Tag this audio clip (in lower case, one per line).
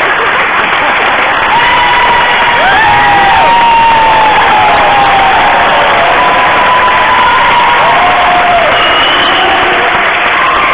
crowd
speech